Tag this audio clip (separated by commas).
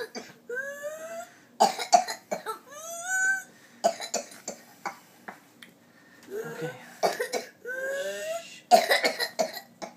people coughing